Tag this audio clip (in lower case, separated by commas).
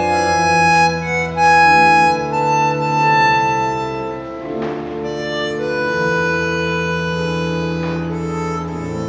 music, harmonica